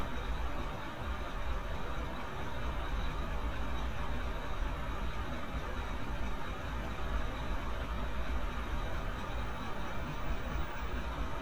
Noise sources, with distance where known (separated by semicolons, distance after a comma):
large-sounding engine, near